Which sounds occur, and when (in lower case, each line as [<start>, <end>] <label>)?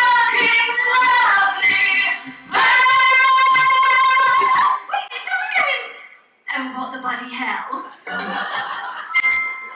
[0.00, 4.66] music
[0.00, 4.82] female singing
[0.00, 9.75] background noise
[4.88, 6.16] woman speaking
[6.40, 8.00] woman speaking
[7.65, 9.75] crowd
[8.04, 9.08] laughter
[9.09, 9.75] music